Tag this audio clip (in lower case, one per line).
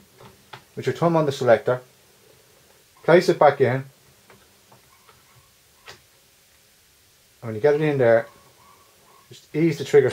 speech